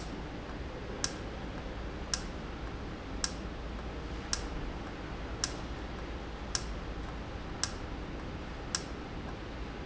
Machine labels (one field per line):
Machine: valve